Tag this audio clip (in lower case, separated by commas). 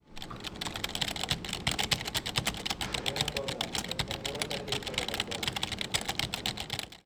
typing, computer keyboard, domestic sounds